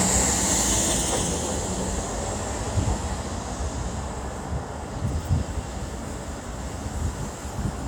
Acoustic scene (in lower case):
street